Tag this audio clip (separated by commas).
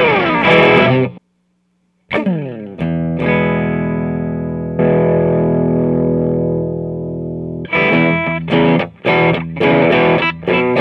inside a small room, Music, Effects unit, Distortion